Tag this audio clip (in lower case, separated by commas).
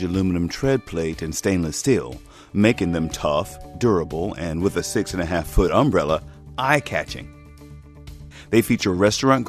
speech, music